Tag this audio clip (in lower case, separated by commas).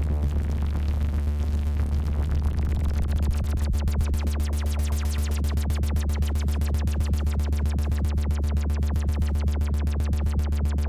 music, sampler